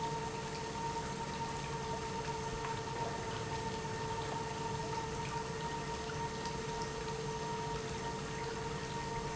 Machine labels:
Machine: pump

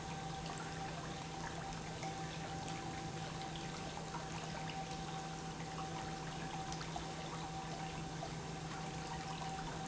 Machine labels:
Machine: pump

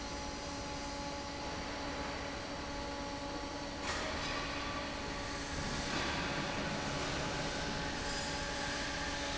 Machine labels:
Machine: fan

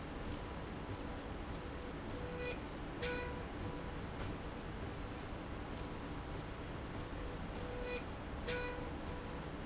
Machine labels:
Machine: slide rail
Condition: normal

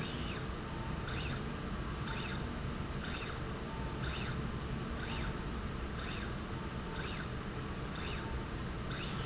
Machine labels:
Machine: slide rail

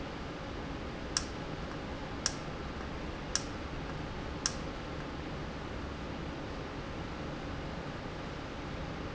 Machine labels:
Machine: valve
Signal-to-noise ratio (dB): -6 dB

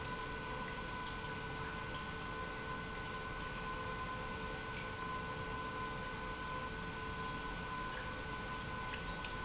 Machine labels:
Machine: pump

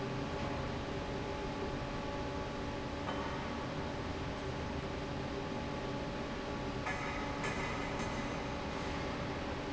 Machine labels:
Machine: fan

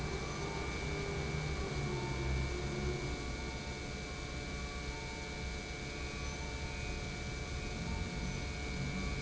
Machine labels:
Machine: pump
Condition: normal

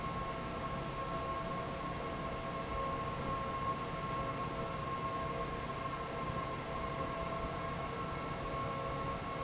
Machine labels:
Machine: fan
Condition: normal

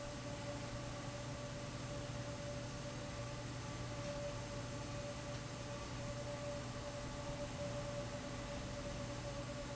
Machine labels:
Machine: fan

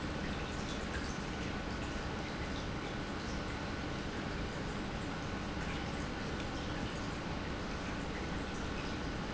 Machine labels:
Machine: pump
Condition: normal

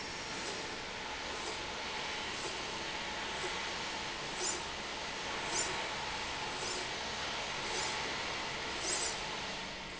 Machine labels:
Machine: slide rail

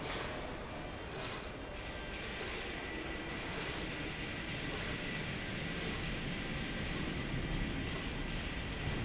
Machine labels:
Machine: slide rail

